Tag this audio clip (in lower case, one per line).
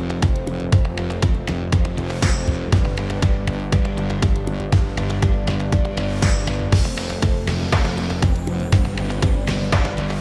music